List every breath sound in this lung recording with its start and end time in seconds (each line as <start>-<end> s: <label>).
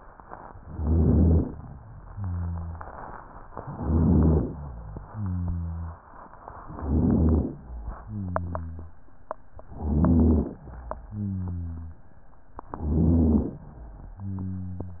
0.54-1.55 s: inhalation
0.54-1.55 s: rhonchi
2.09-2.87 s: rhonchi
3.63-4.56 s: inhalation
3.63-4.56 s: rhonchi
5.06-5.99 s: rhonchi
6.63-7.53 s: inhalation
6.63-7.53 s: rhonchi
8.05-8.98 s: rhonchi
9.72-10.62 s: inhalation
9.72-10.62 s: rhonchi
11.06-12.05 s: rhonchi
12.69-13.59 s: inhalation
12.69-13.59 s: rhonchi
14.17-15.00 s: rhonchi